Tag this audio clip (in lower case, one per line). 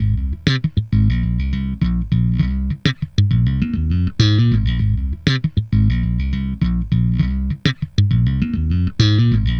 plucked string instrument
bass guitar
guitar
music
musical instrument